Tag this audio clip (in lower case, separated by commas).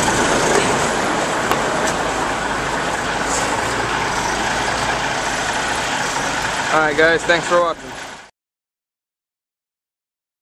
truck, vehicle